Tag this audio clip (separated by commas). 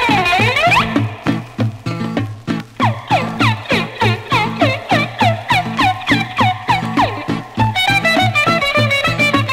Music, Funny music